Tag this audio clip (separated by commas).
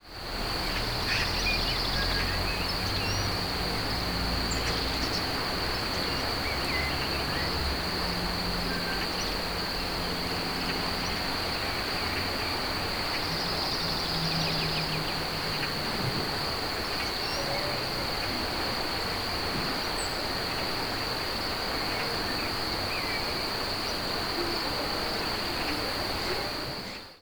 Cricket, Animal, Wild animals, Insect